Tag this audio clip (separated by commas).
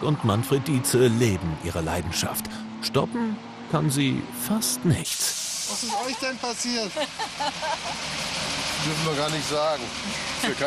Vehicle, Car